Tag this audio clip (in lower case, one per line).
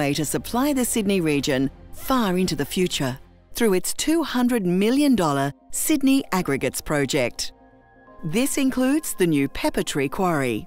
music
speech